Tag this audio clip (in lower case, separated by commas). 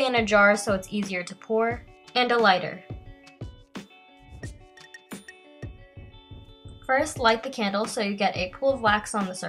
speech, music